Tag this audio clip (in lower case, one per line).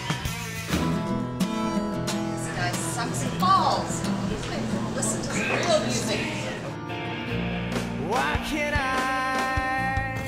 music
speech